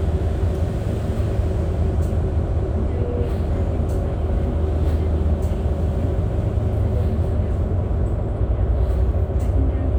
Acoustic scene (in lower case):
bus